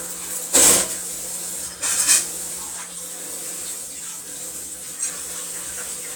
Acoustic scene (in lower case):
kitchen